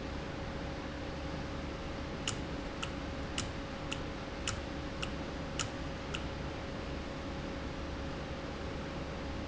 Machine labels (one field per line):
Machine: valve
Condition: normal